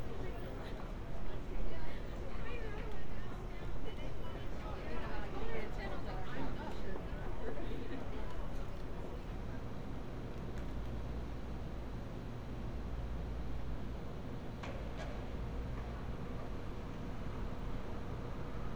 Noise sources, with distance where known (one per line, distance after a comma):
background noise